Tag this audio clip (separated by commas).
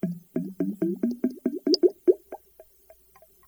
Bathtub (filling or washing), home sounds